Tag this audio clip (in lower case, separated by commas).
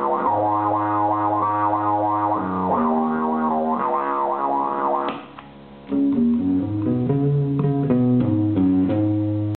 music, guitar, musical instrument